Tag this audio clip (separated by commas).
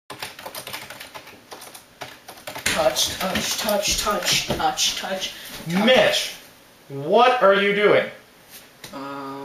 Speech, Typewriter